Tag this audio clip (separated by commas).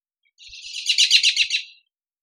Wild animals, bird call, Bird, tweet, Animal